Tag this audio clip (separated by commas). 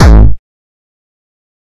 Percussion, Musical instrument, Music, Drum kit